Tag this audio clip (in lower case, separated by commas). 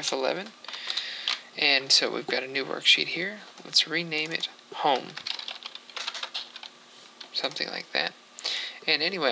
typing, computer keyboard